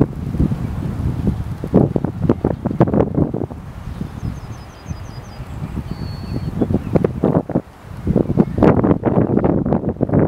Wind blowing into the microphone